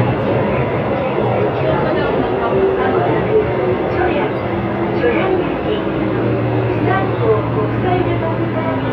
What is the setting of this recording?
subway train